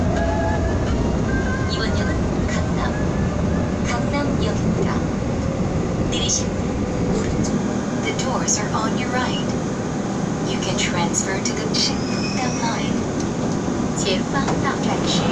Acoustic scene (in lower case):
subway train